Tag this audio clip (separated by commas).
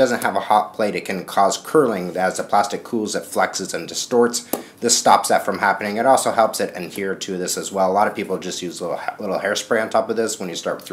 Speech